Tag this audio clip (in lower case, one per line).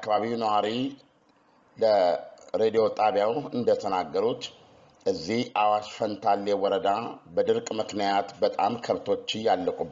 speech